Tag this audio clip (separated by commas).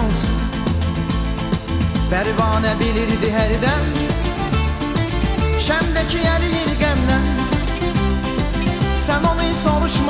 Music